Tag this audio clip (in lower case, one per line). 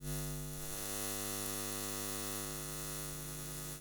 animal
insect
wild animals
buzz